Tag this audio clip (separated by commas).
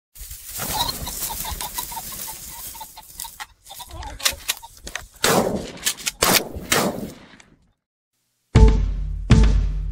outside, rural or natural, Music